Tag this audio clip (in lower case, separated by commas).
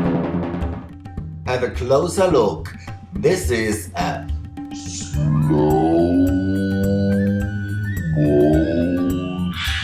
percussion, tabla, drum